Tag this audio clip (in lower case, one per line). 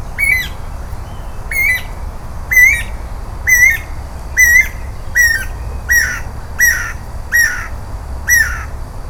animal
wild animals
bird